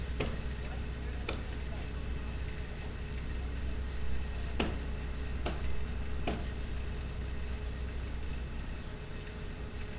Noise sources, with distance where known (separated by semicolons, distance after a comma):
non-machinery impact